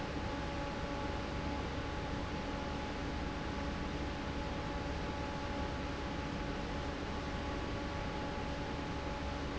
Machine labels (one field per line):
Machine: fan